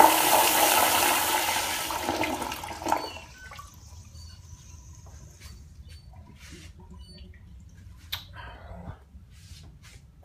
The water flushes in a toilet